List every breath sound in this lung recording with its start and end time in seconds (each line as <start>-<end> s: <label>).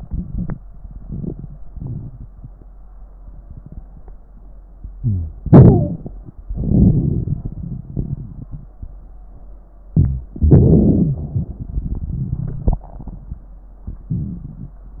4.96-5.33 s: wheeze
5.00-6.12 s: inhalation
6.35-8.73 s: exhalation
6.35-8.73 s: crackles
9.88-10.36 s: inhalation
10.38-12.82 s: exhalation
10.38-12.82 s: crackles